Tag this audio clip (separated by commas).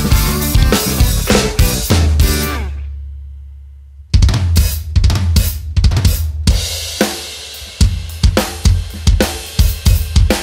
playing bass drum